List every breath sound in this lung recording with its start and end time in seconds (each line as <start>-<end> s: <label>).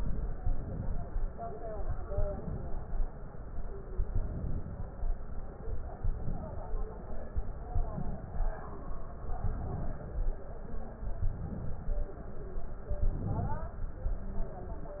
0.34-1.12 s: inhalation
2.10-2.88 s: inhalation
4.14-4.92 s: inhalation
5.96-6.74 s: inhalation
7.72-8.50 s: inhalation
9.39-10.17 s: inhalation
11.15-11.93 s: inhalation
13.00-13.78 s: inhalation